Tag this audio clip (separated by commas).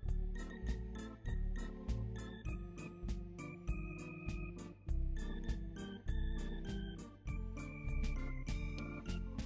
Organ, Hammond organ